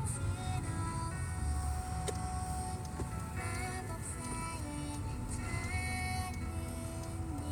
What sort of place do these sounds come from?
car